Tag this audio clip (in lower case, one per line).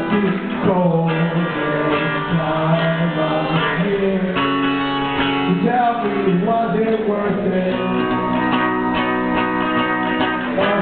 music